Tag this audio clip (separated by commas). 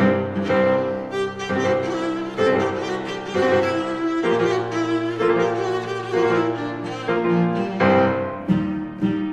Bowed string instrument, Cello, Double bass